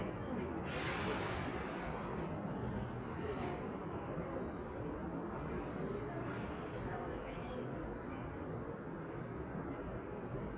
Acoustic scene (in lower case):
subway station